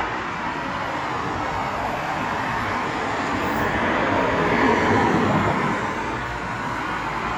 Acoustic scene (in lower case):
street